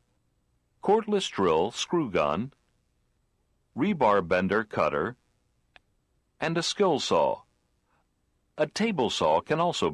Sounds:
speech

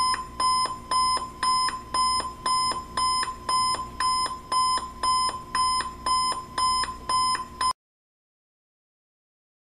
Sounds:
alarm clock

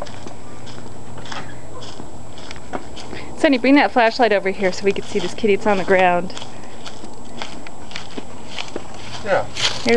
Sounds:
speech

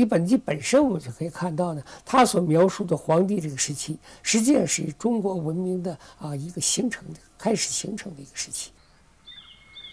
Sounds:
outside, rural or natural
speech

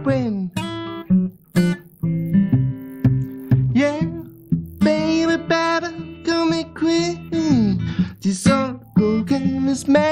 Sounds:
music
blues

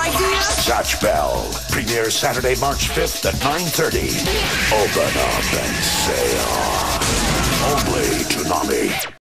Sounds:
music
speech

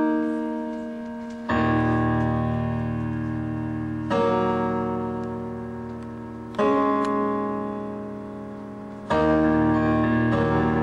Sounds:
sad music
music

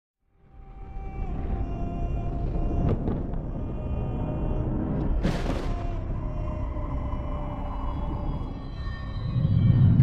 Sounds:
hum

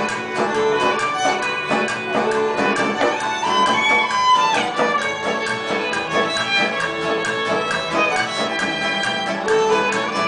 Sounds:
musical instrument
music
fiddle

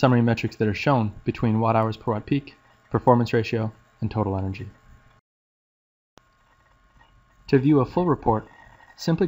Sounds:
speech

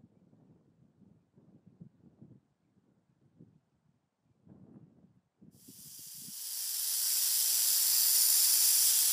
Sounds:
snake rattling

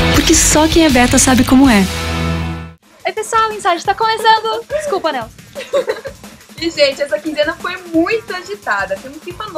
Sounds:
music
speech

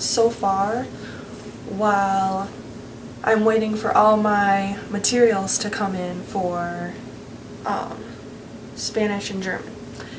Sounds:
speech

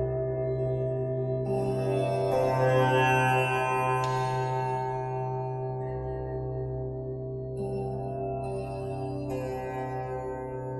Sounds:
singing bowl

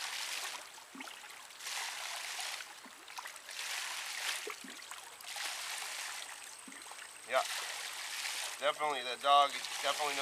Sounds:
speech

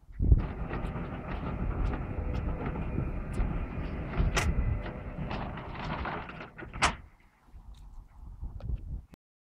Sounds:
sliding door

